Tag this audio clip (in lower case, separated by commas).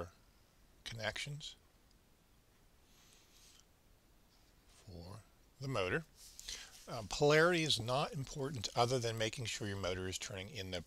inside a small room, speech